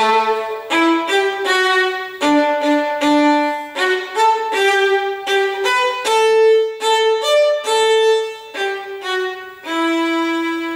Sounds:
Music, Musical instrument, Violin

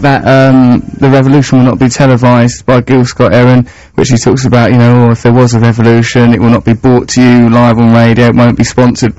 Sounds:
Speech

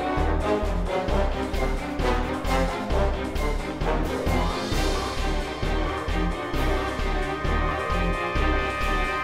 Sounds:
Music

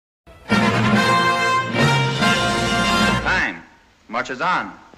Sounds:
Music, Speech

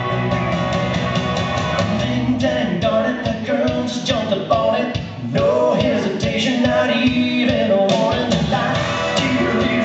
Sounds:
Music

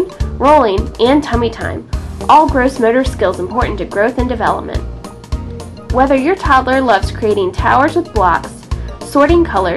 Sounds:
Speech, Music

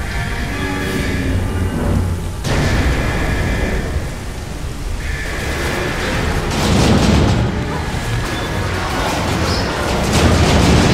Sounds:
Sailboat, Water vehicle

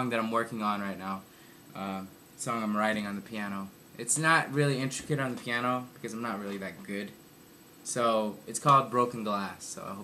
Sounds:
Speech

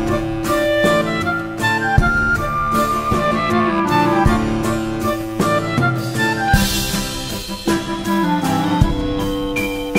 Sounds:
Musical instrument, Music, Guitar

